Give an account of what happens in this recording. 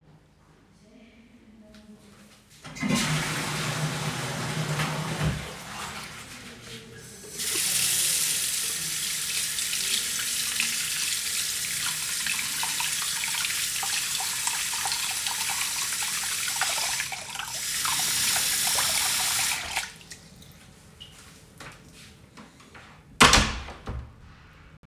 I flushed the toilet and then washed my hands using soap from the dispenser. After washing my hands, I closed the door to a restroom.